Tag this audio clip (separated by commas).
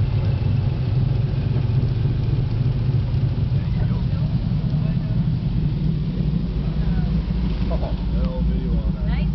Speech